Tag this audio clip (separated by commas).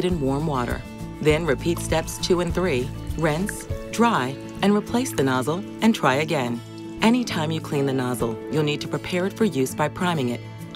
Speech, Music